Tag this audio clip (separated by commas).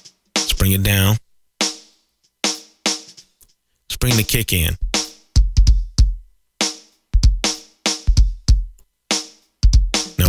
Music, Drum machine